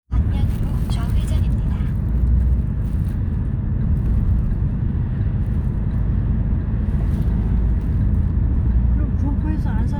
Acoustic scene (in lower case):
car